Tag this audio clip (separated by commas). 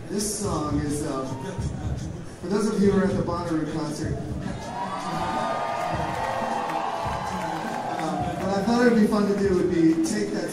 Narration, Speech, man speaking, Music